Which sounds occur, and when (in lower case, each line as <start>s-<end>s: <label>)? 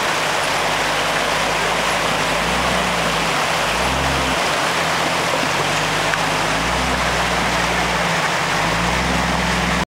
0.0s-9.8s: medium engine (mid frequency)
0.0s-9.9s: stream
2.2s-3.3s: revving
3.7s-4.4s: revving
5.6s-8.1s: revving
6.1s-6.2s: tick
8.7s-9.8s: revving